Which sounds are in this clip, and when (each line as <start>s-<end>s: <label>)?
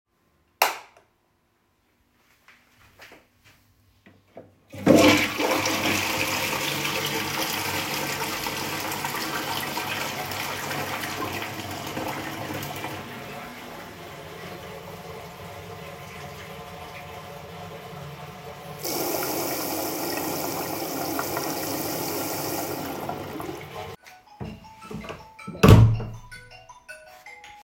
0.4s-1.3s: light switch
4.6s-18.8s: toilet flushing
18.8s-24.1s: running water
24.2s-27.6s: phone ringing
24.4s-25.6s: footsteps
25.6s-26.3s: door